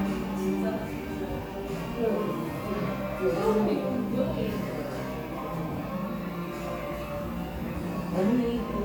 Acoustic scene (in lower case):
crowded indoor space